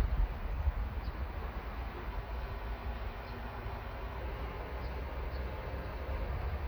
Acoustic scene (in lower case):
park